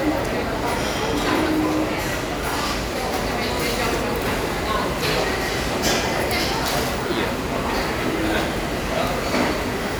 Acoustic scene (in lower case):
restaurant